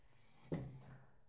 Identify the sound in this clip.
wooden furniture moving